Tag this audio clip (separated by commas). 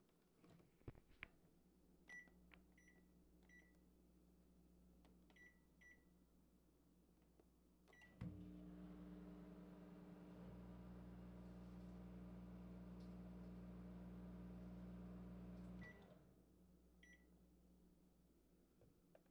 Domestic sounds, Microwave oven